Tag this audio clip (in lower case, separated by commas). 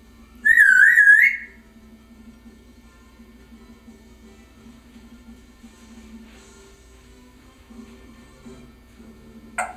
music, animal, pets